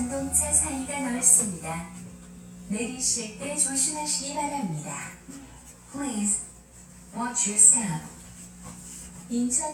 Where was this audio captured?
on a subway train